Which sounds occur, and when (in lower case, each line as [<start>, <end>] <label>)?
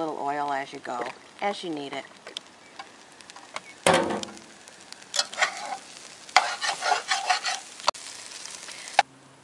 [0.00, 1.06] woman speaking
[0.00, 9.43] wind
[0.02, 7.87] frying (food)
[1.34, 2.02] woman speaking
[3.50, 3.56] tick
[3.82, 4.31] generic impact sounds
[5.10, 5.74] stir
[6.31, 6.36] tick
[6.34, 7.56] stir
[7.83, 7.88] tick
[7.92, 9.02] frying (food)
[8.94, 8.99] tick